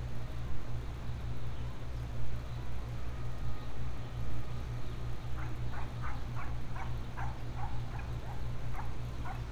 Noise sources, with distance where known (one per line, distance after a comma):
dog barking or whining, far